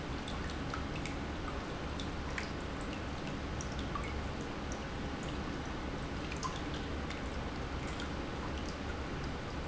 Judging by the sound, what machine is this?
pump